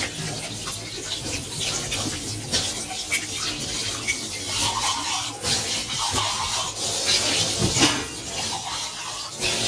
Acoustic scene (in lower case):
kitchen